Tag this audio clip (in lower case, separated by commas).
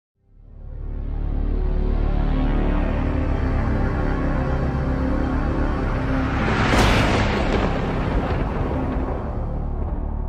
music